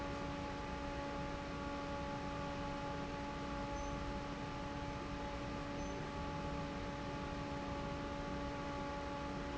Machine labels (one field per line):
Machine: fan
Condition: normal